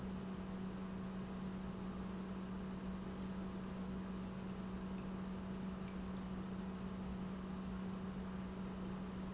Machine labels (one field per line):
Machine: pump